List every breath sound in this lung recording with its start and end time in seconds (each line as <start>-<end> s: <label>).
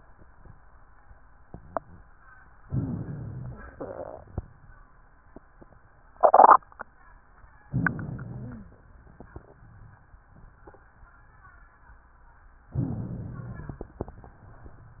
2.66-3.56 s: inhalation
7.68-8.66 s: inhalation
12.71-13.76 s: inhalation